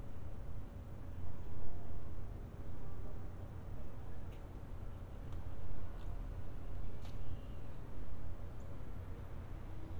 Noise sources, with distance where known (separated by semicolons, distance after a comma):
background noise